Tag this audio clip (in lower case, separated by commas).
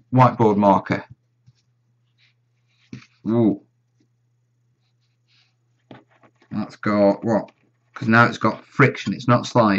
speech, inside a small room